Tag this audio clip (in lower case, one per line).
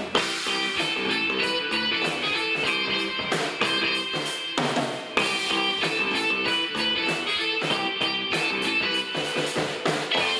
drum kit
drum
inside a large room or hall
music